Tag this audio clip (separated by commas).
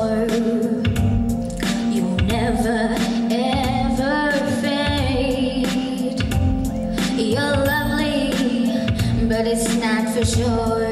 Child singing, Music, Female singing